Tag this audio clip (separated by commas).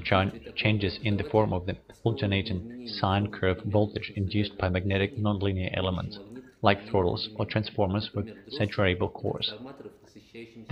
Speech